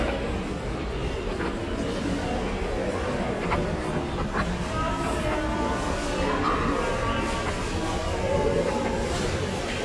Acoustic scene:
crowded indoor space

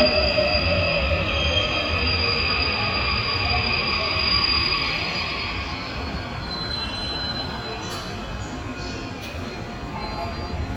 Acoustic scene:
subway station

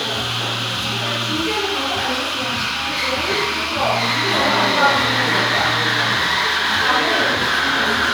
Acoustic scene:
cafe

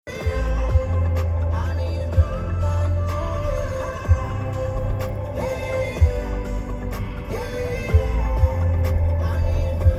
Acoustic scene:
car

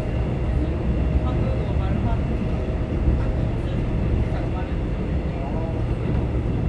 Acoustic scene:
subway train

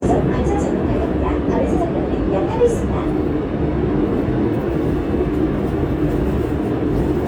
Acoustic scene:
subway train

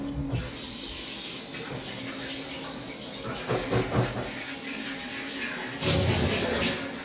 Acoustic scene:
restroom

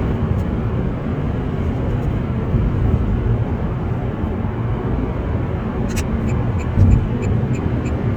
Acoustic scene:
car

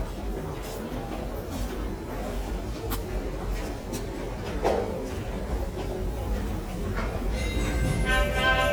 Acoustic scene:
subway station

